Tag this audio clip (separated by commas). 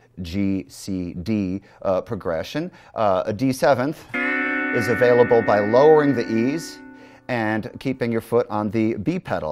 Speech, Music, slide guitar